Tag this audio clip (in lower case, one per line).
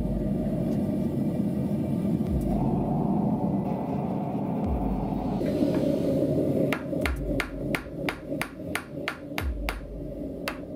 forging swords